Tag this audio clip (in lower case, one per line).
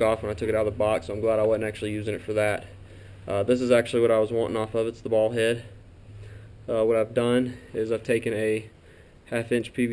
speech